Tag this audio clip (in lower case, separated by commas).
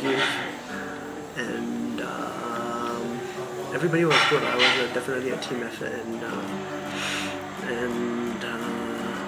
speech, inside a large room or hall, music, dishes, pots and pans